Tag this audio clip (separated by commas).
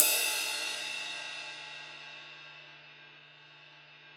Cymbal, Music, Crash cymbal, Percussion, Musical instrument